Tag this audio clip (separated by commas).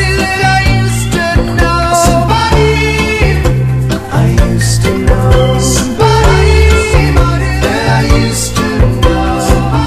Independent music, Music